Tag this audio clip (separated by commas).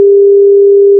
Alarm, Telephone